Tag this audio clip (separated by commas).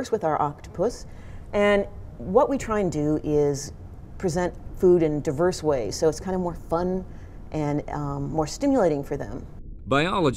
Speech